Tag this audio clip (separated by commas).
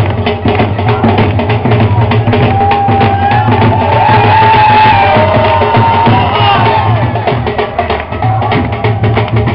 Speech, Music